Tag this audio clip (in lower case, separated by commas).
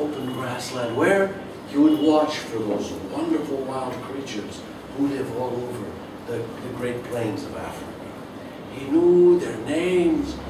speech